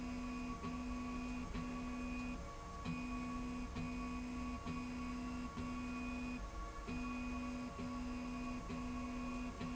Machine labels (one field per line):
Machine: slide rail